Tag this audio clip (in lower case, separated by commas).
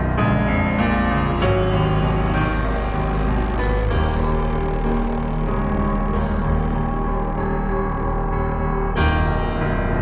music